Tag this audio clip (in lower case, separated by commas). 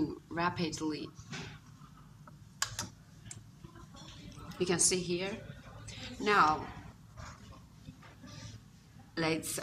speech, woman speaking